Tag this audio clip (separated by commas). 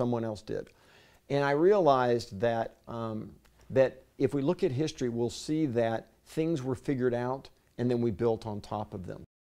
Speech